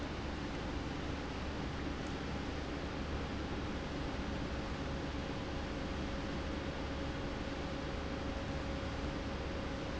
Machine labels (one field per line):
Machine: pump